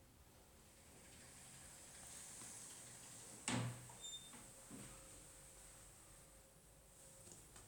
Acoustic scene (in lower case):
elevator